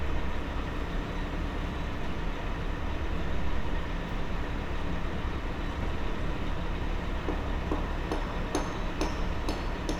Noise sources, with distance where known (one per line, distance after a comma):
non-machinery impact, near